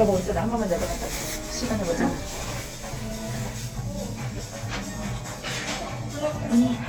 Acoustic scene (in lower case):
elevator